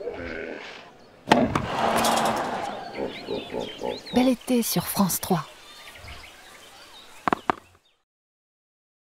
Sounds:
speech

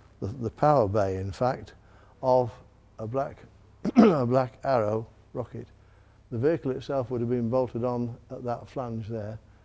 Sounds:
speech

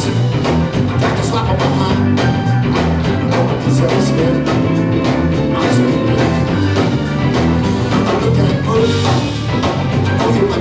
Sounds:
music

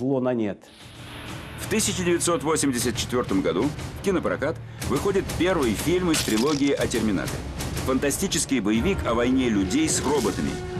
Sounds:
music, speech

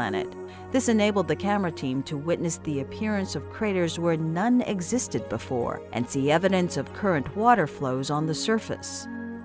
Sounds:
speech, music

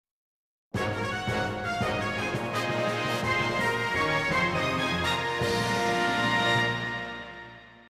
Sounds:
music

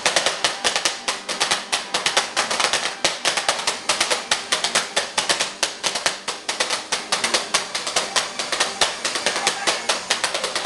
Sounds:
music, speech

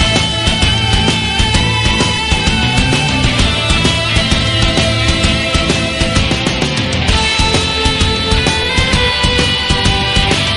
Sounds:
music

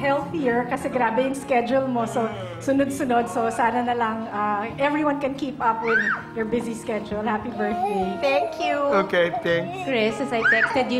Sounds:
woman speaking

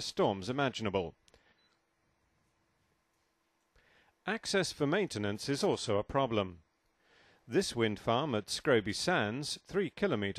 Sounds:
speech

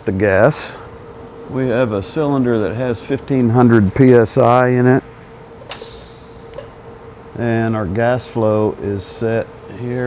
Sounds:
arc welding

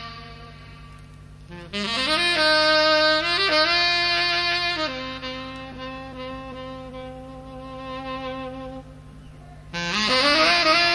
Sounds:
music

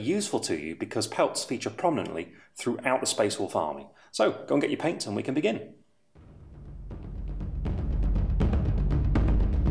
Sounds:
speech, music

